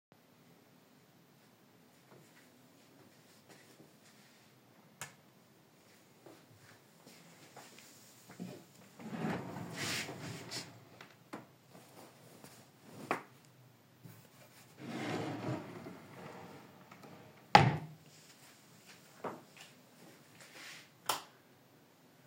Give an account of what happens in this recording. I woke up feeling cold, turn on the lights, opened the bed drawer to grab an extra blanket, closed the drawer and turned off the lights.